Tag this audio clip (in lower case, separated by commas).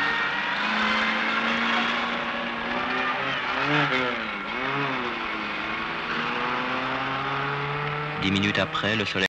speech